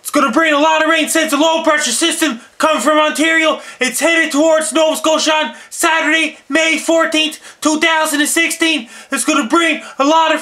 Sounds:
speech

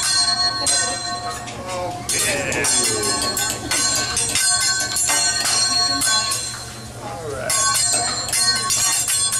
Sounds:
speech, tubular bells

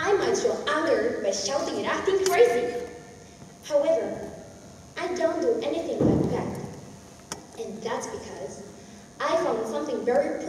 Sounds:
female speech

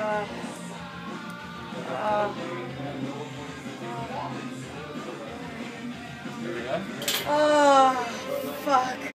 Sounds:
music, speech

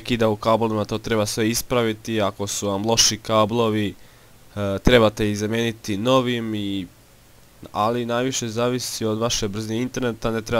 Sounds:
speech

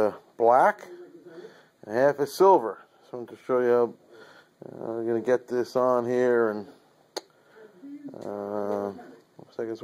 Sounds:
firing cannon

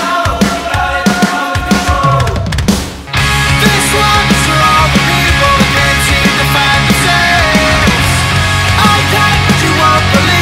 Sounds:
grunge

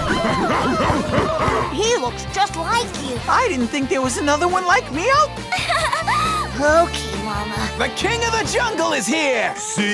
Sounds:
music, speech, outside, rural or natural

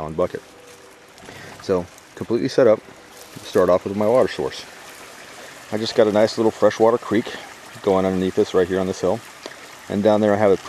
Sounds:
speech

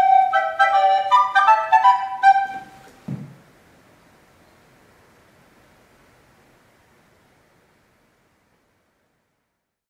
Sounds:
music

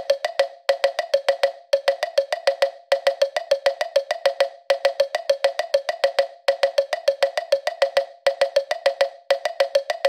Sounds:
music

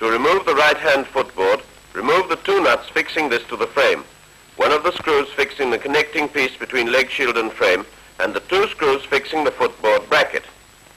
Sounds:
speech

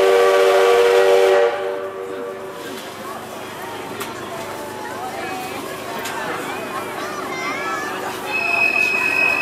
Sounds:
train wheels squealing, train horn

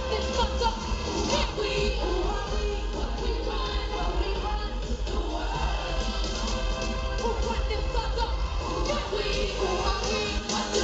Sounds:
music

